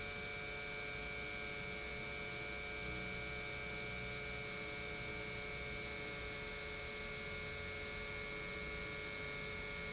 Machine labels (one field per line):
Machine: pump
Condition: normal